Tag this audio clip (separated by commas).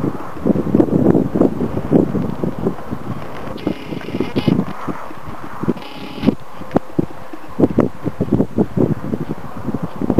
Clip-clop, horse clip-clop